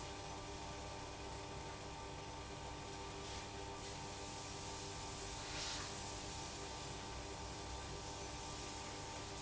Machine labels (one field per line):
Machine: pump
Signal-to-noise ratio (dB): 6 dB